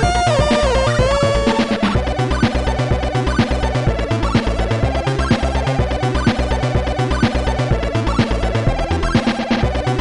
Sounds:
background music, music

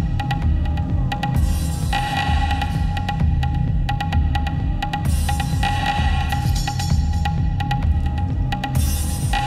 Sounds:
music

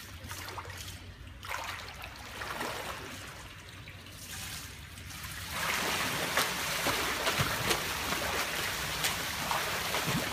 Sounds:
swimming

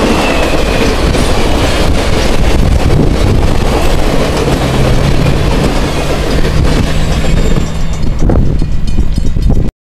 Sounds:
outside, urban or man-made, vehicle, railroad car, train

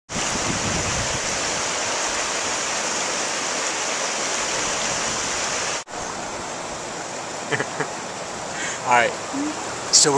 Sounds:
waterfall, stream burbling, stream, speech

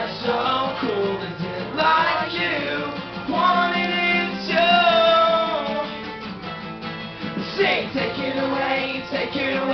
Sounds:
music

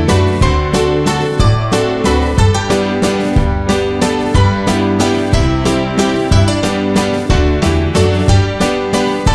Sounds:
music

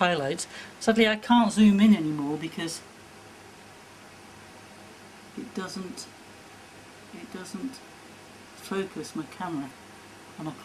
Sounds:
speech

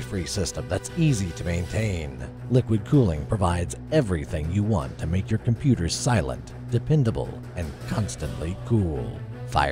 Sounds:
music, speech

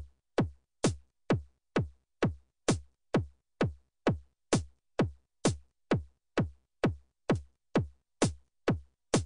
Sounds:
music, electronic music

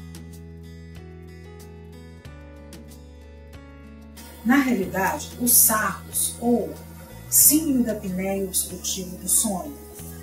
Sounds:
speech, music

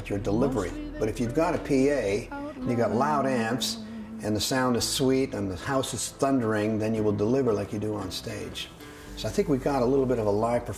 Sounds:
speech, music

